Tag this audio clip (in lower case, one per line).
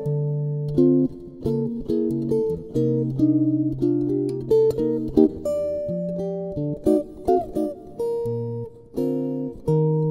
musical instrument
plucked string instrument
guitar
electric guitar
strum
bass guitar
music
playing bass guitar